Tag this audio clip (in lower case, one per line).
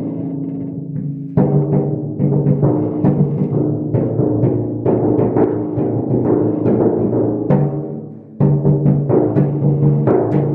playing tympani